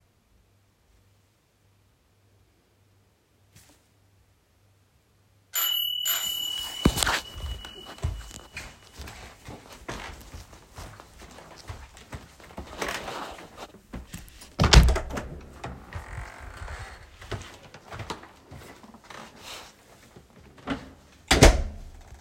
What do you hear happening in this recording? I sit at the table when I hear the door ring. Then I stand up, walk to it open the door and the other person comes inside. Afterwards I close the door